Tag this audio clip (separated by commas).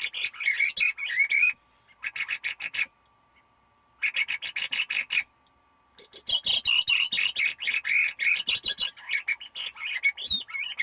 wood thrush calling